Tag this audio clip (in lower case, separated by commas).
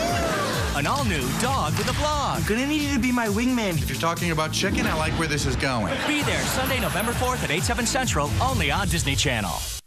music, speech